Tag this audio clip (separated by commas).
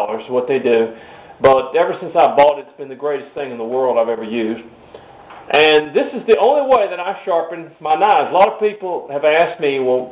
Speech